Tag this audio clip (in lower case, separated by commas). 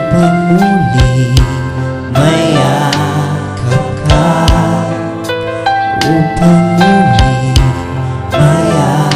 music, male singing, gospel music